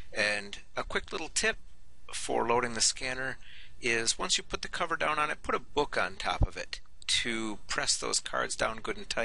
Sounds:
speech

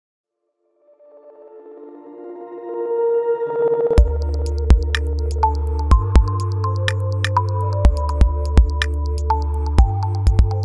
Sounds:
music

